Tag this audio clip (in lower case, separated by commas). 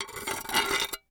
dishes, pots and pans, glass, home sounds